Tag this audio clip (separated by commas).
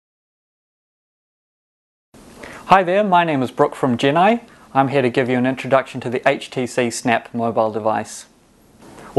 Speech